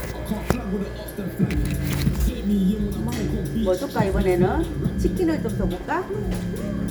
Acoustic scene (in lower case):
restaurant